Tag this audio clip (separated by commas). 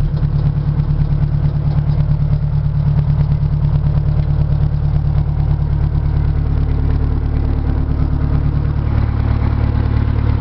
Vehicle